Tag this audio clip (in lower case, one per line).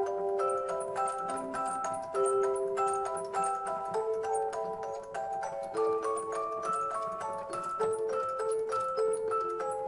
tender music
music